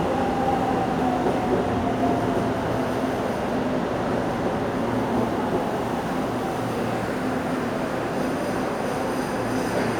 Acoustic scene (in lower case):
subway station